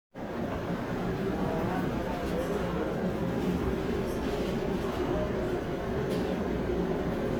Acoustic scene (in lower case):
subway train